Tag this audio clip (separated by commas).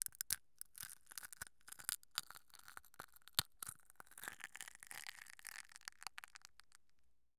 Crushing